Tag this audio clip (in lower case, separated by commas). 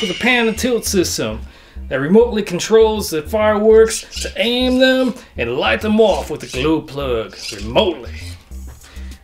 speech